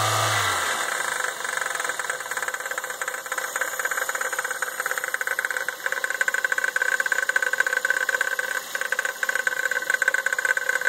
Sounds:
car engine knocking

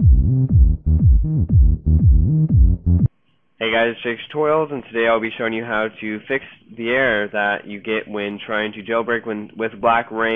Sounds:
speech
music

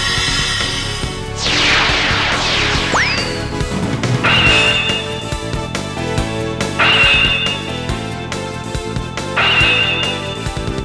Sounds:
music

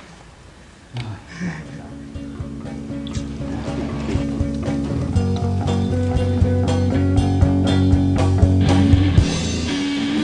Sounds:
speech
blues
music

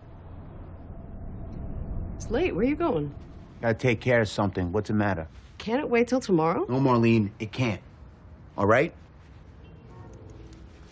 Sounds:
speech

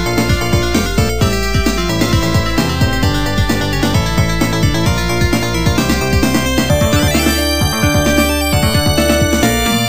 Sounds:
music

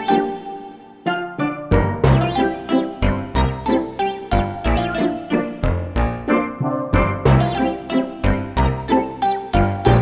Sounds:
music
soundtrack music

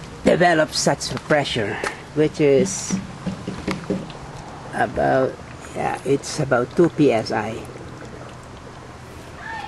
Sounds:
speech

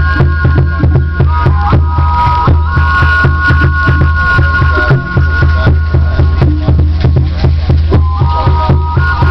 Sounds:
music

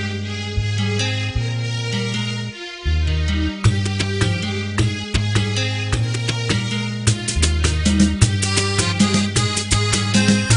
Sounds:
music

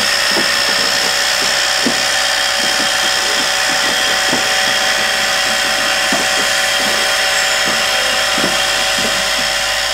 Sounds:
vehicle
rail transport
railroad car
train

